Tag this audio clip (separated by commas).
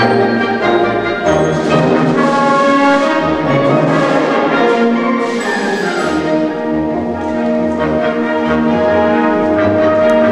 Music